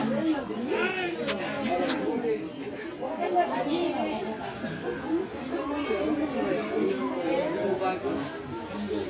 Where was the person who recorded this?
in a park